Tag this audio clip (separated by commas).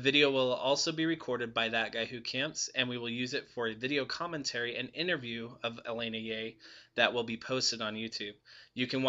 Speech